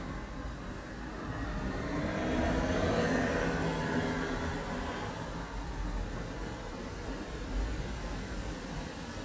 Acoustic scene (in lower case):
street